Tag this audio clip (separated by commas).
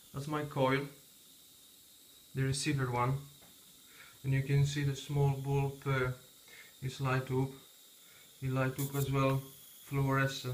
inside a small room, Speech